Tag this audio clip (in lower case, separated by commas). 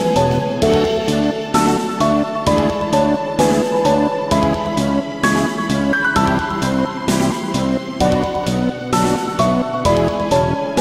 video game music, music